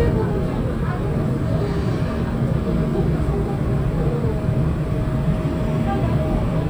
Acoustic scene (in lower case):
subway train